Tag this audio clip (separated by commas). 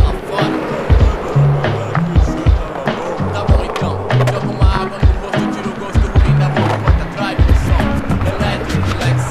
Music, Skateboard